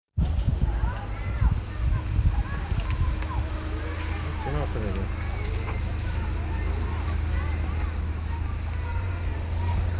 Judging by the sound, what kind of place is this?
residential area